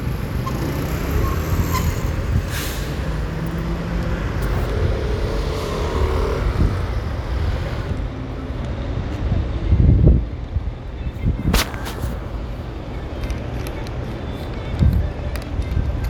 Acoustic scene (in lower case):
street